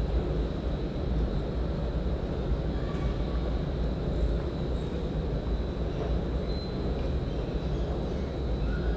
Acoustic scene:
subway station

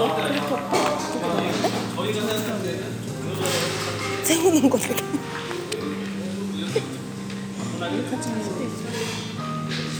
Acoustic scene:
cafe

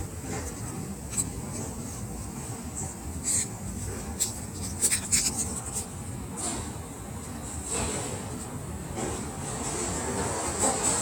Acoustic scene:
subway station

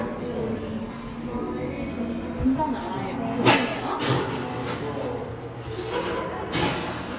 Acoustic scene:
cafe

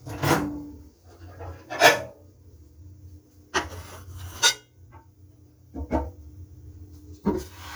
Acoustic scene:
kitchen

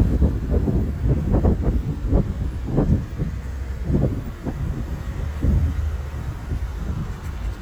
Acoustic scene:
street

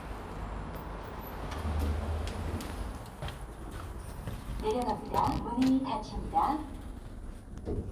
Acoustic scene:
elevator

